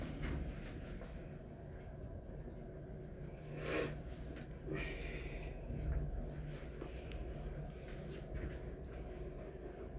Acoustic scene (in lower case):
elevator